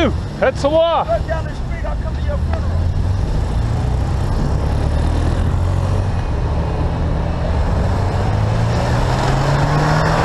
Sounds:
Car, Vehicle, Motorcycle

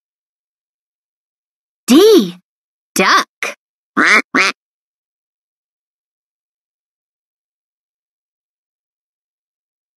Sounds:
Speech

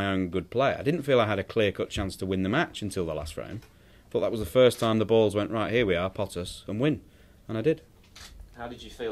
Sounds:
Speech

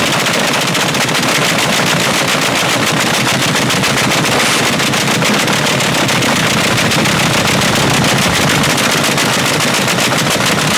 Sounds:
Gunshot

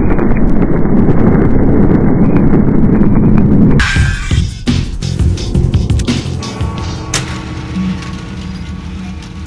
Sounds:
Music

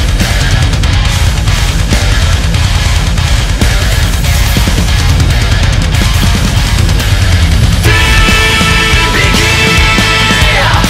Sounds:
Music

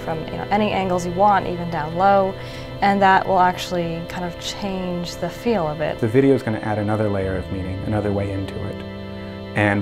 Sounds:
Music, Speech

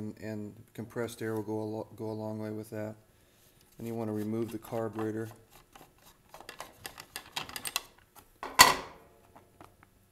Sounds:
Speech

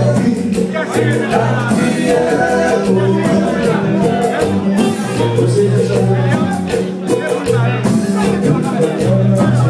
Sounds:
Music, Speech

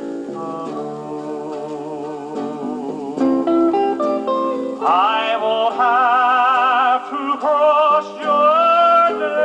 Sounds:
Plucked string instrument

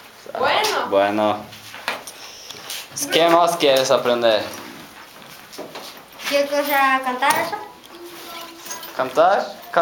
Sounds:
Speech

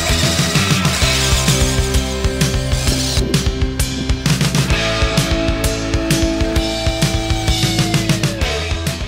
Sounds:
Music

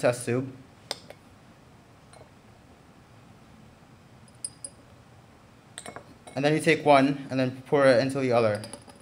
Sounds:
Speech, inside a small room

